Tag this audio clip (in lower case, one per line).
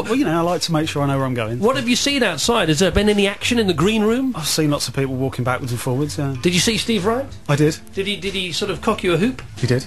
music
speech